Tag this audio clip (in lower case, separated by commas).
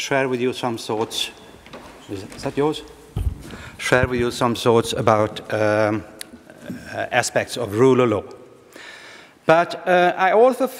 male speech, speech